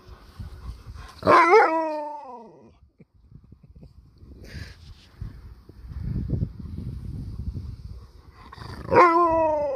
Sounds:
dog howling

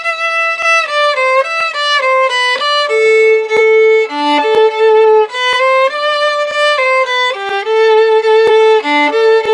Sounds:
musical instrument, violin, music

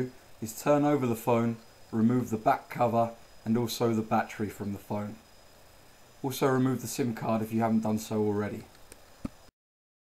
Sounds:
speech

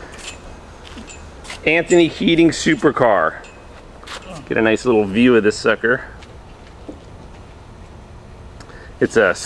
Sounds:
speech

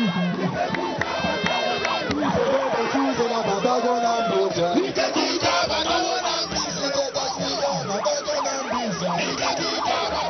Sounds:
music, rattle

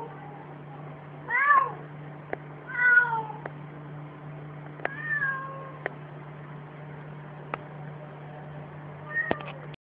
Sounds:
meow, pets, cat, cat meowing, animal

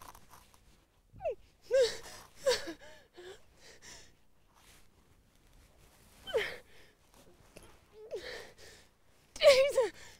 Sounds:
speech

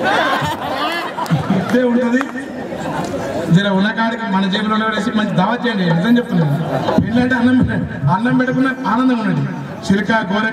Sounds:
male speech, speech

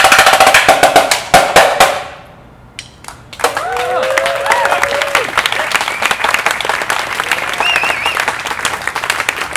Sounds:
outside, urban or man-made, snare drum, music

